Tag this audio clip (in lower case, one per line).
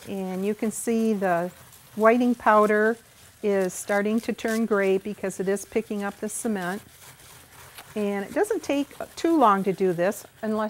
speech